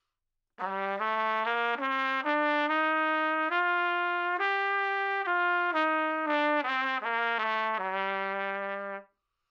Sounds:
music, brass instrument, trumpet, musical instrument

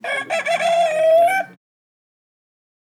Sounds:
livestock, chicken, animal, fowl

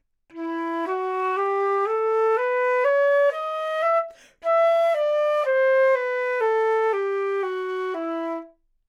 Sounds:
musical instrument, wind instrument, music

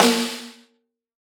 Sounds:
percussion, musical instrument, drum, snare drum, music

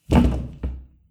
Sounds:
thud

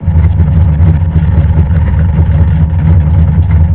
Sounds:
engine, idling, car, motor vehicle (road), vehicle

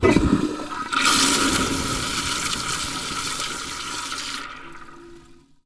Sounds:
toilet flush, domestic sounds

